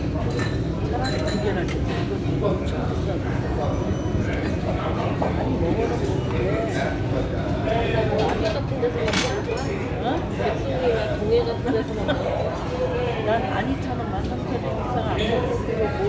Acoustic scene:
restaurant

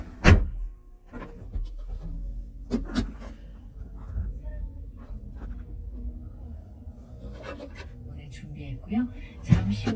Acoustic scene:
car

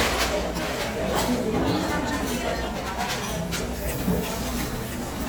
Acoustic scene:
restaurant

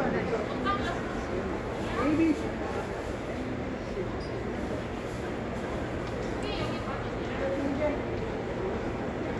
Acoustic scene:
cafe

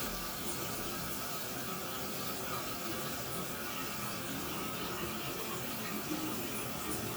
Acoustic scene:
restroom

